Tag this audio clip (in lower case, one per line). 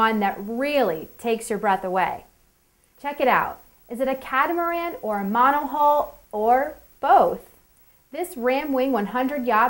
speech